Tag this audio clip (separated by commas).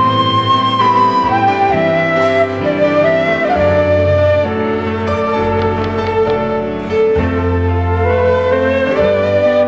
Keyboard (musical), Music, Musical instrument, Flute, Piano